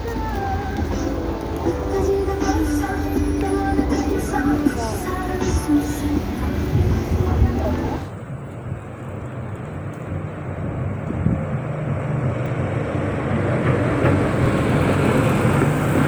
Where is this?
on a street